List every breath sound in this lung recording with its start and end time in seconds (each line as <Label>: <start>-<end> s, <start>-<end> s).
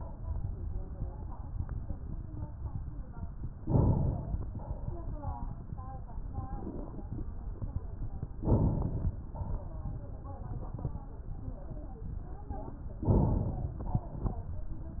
Inhalation: 3.61-4.46 s, 8.46-9.13 s, 13.13-13.79 s
Exhalation: 4.54-5.20 s, 9.34-10.00 s, 13.91-14.57 s